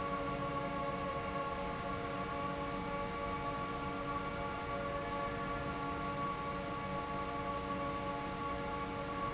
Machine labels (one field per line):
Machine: fan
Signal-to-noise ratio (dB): -6 dB